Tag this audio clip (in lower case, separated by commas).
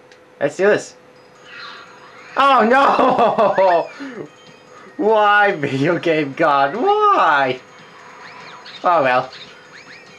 speech